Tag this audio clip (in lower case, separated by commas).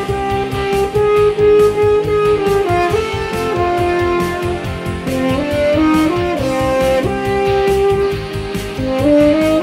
playing french horn